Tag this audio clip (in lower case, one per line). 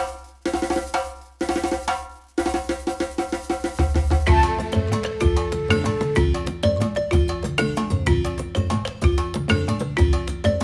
music